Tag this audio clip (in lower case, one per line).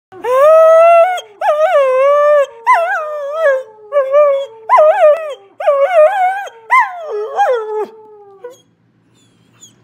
coyote howling